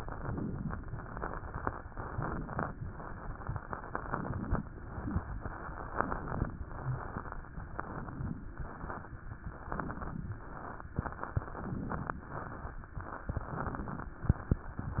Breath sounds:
0.00-0.86 s: inhalation
0.93-1.79 s: exhalation
1.83-2.69 s: inhalation
2.88-3.87 s: exhalation
3.94-4.62 s: inhalation
4.87-5.86 s: exhalation
4.97-5.52 s: crackles
5.89-6.55 s: inhalation
6.62-7.43 s: exhalation
6.74-7.06 s: crackles
7.72-8.50 s: inhalation
8.48-9.18 s: exhalation
9.67-10.35 s: inhalation
10.40-11.43 s: exhalation
11.50-12.18 s: inhalation
12.25-13.22 s: exhalation
13.29-14.13 s: inhalation
14.16-15.00 s: exhalation

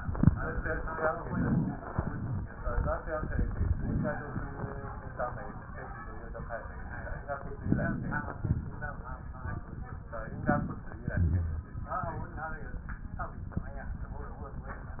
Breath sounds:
7.63-8.43 s: inhalation
7.63-8.41 s: crackles
8.43-9.20 s: exhalation
8.43-9.20 s: crackles
10.11-10.89 s: crackles
10.15-10.93 s: inhalation
10.99-11.76 s: exhalation
10.99-11.76 s: rhonchi

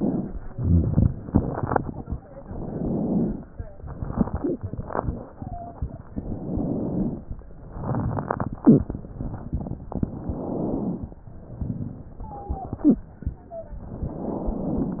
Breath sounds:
0.44-1.09 s: exhalation
0.44-1.09 s: rhonchi
2.43-3.44 s: inhalation
4.27-4.66 s: wheeze
5.24-5.78 s: wheeze
6.17-7.27 s: inhalation
7.72-8.62 s: exhalation
7.72-8.62 s: rhonchi
10.06-11.16 s: inhalation
11.33-12.27 s: exhalation
12.22-12.95 s: wheeze
13.34-13.88 s: wheeze
13.95-15.00 s: inhalation

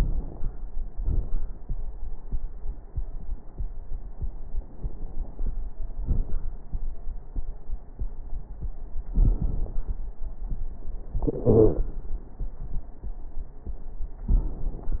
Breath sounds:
0.00-0.50 s: inhalation
0.00-0.50 s: crackles
0.88-1.29 s: exhalation
0.88-1.29 s: crackles
11.48-11.79 s: wheeze

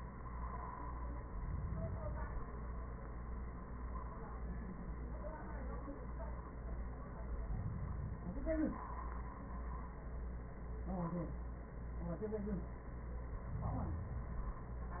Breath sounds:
1.10-2.42 s: inhalation
7.44-8.38 s: inhalation
13.51-14.61 s: inhalation

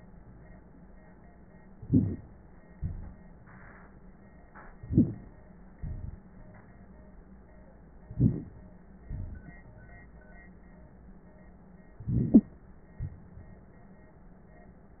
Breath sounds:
1.75-2.41 s: inhalation
2.73-3.97 s: exhalation
4.76-5.43 s: inhalation
5.79-6.91 s: exhalation
8.08-8.63 s: inhalation
9.09-10.06 s: exhalation
11.99-12.51 s: inhalation
12.33-12.43 s: wheeze
13.02-13.97 s: exhalation

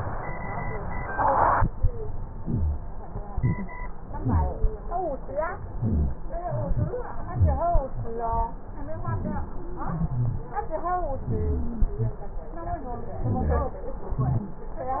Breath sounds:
2.41-2.81 s: inhalation
2.41-2.81 s: rhonchi
3.28-3.80 s: exhalation
4.17-4.63 s: inhalation
4.17-4.63 s: rhonchi
5.73-6.19 s: inhalation
5.73-6.19 s: rhonchi
6.45-6.98 s: exhalation
6.45-6.98 s: rhonchi
7.32-7.78 s: inhalation
7.32-7.78 s: rhonchi
9.01-9.54 s: inhalation
9.01-9.54 s: rhonchi
9.87-10.51 s: exhalation
9.87-10.51 s: rhonchi
11.25-11.84 s: inhalation
11.25-11.84 s: wheeze
13.26-13.85 s: exhalation
13.26-13.85 s: rhonchi

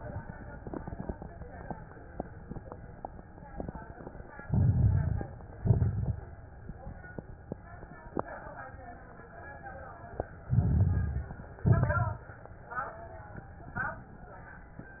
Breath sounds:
4.42-5.33 s: inhalation
4.42-5.33 s: crackles
5.60-6.22 s: exhalation
5.60-6.22 s: crackles
10.49-11.37 s: inhalation
10.49-11.37 s: crackles
11.65-12.28 s: exhalation
11.65-12.28 s: crackles

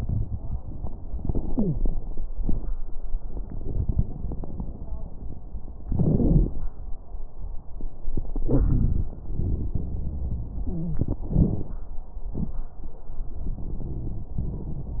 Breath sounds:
1.51-1.76 s: wheeze
8.49-9.16 s: wheeze
9.84-10.99 s: wheeze
13.83-15.00 s: wheeze

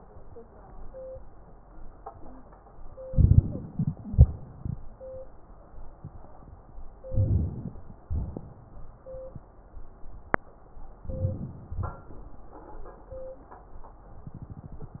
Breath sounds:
3.01-4.00 s: crackles
3.03-4.00 s: inhalation
4.01-4.82 s: exhalation
4.01-4.82 s: crackles
7.06-7.92 s: inhalation
8.04-8.90 s: exhalation
11.03-11.77 s: inhalation
11.76-12.28 s: exhalation

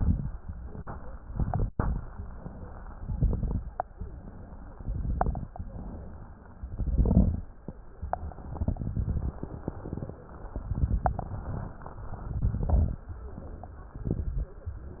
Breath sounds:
0.00-0.41 s: exhalation
0.00-0.41 s: crackles
0.44-1.17 s: inhalation
1.20-2.06 s: exhalation
1.20-2.06 s: crackles
2.14-2.88 s: inhalation
2.95-3.81 s: exhalation
2.95-3.81 s: crackles
3.85-4.58 s: inhalation
4.65-5.51 s: exhalation
4.65-5.51 s: crackles
5.54-6.50 s: inhalation
6.59-7.45 s: exhalation
6.59-7.45 s: crackles
8.37-9.42 s: exhalation
8.37-9.42 s: crackles
10.62-11.68 s: exhalation
10.62-11.68 s: crackles
12.09-13.03 s: exhalation
12.09-13.03 s: crackles
13.93-14.60 s: exhalation
13.93-14.60 s: crackles

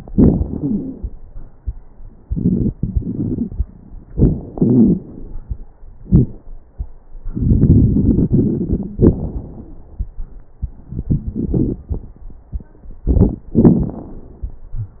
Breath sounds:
0.10-1.14 s: exhalation
0.10-1.14 s: crackles
2.22-2.75 s: inhalation
2.75-3.61 s: exhalation
2.75-3.61 s: crackles
4.09-4.56 s: inhalation
4.09-4.56 s: crackles
4.58-5.38 s: exhalation
4.58-5.38 s: crackles
7.33-8.95 s: inhalation
7.33-8.95 s: crackles
9.00-9.97 s: exhalation
9.00-9.97 s: crackles
13.07-13.47 s: inhalation
13.07-13.47 s: crackles
13.54-14.58 s: exhalation
13.54-14.58 s: crackles

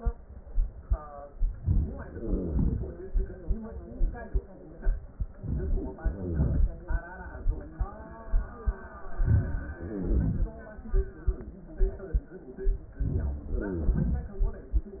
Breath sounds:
1.58-2.14 s: inhalation
2.03-2.91 s: wheeze
2.13-4.60 s: exhalation
5.36-5.98 s: inhalation
5.99-7.14 s: exhalation
6.00-6.70 s: wheeze
9.01-9.76 s: inhalation
9.77-10.53 s: wheeze
9.77-11.59 s: exhalation
12.97-13.48 s: inhalation
13.48-14.29 s: wheeze
13.48-14.97 s: exhalation

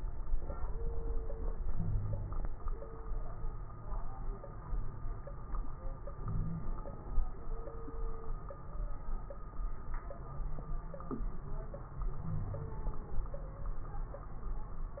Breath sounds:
1.67-2.39 s: wheeze
6.18-6.67 s: wheeze
10.20-11.37 s: wheeze
12.20-12.75 s: wheeze

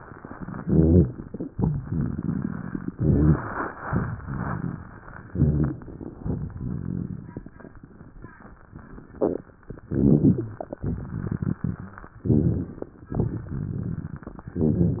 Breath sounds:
0.51-1.32 s: inhalation
0.51-1.32 s: crackles
1.47-2.92 s: exhalation
1.49-2.90 s: crackles
2.99-3.81 s: inhalation
2.99-3.81 s: crackles
3.86-5.28 s: crackles
3.86-5.31 s: exhalation
5.29-6.16 s: inhalation
5.29-6.16 s: crackles
6.18-7.59 s: crackles
6.20-7.65 s: exhalation
9.74-10.62 s: inhalation
9.74-10.62 s: crackles
10.77-12.06 s: exhalation
10.77-12.06 s: crackles
12.15-13.03 s: crackles
12.17-13.05 s: inhalation
13.16-14.46 s: exhalation
13.16-14.46 s: crackles
14.53-15.00 s: inhalation
14.53-15.00 s: crackles

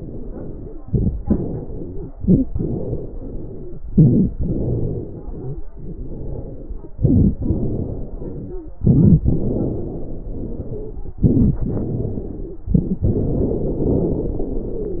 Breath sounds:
0.00-0.78 s: exhalation
0.00-0.79 s: wheeze
0.84-1.20 s: inhalation
0.84-1.20 s: crackles
1.22-2.08 s: wheeze
1.24-2.07 s: exhalation
2.11-2.48 s: inhalation
2.11-2.48 s: wheeze
2.51-3.75 s: exhalation
2.51-3.75 s: wheeze
3.91-4.28 s: inhalation
3.91-4.28 s: crackles
4.37-5.61 s: exhalation
4.37-5.61 s: wheeze
5.72-6.96 s: exhalation
5.72-6.96 s: wheeze
7.03-7.34 s: inhalation
7.03-7.34 s: crackles
7.41-8.65 s: exhalation
7.41-8.65 s: wheeze
8.86-9.16 s: inhalation
8.86-9.16 s: crackles
9.27-11.16 s: exhalation
9.27-11.16 s: wheeze
11.29-11.60 s: inhalation
11.29-11.60 s: crackles
11.65-12.64 s: exhalation
11.65-12.64 s: wheeze
12.73-13.04 s: inhalation
12.73-13.04 s: crackles
13.07-15.00 s: exhalation
13.07-15.00 s: wheeze

